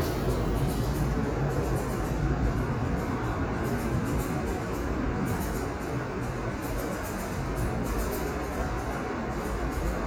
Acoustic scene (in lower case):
subway station